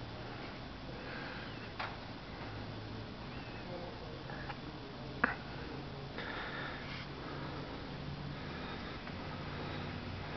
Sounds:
Speech

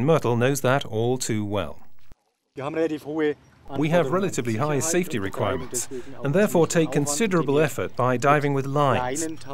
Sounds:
Speech

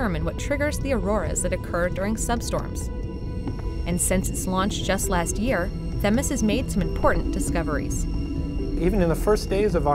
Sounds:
Speech, Music

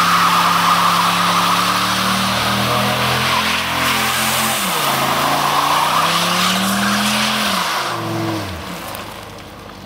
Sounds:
Vehicle, Truck

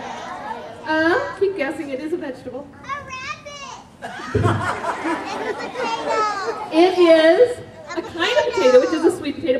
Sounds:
Speech

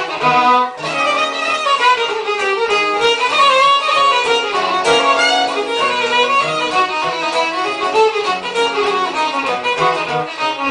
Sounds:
Musical instrument, fiddle, Guitar, Plucked string instrument, Acoustic guitar, Music

